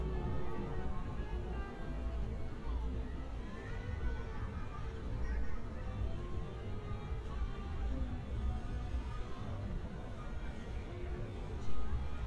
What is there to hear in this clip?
music from a fixed source, person or small group talking